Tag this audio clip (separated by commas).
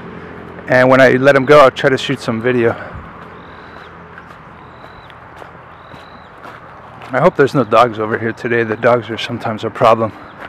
Animal, Speech, outside, rural or natural